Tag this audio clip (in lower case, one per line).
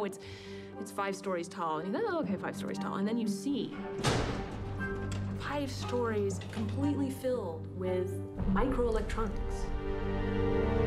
speech
music